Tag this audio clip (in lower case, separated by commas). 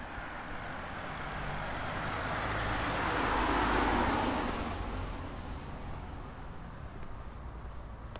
engine, car, vehicle, motor vehicle (road)